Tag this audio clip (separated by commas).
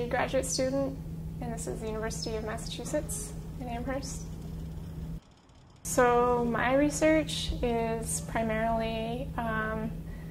Speech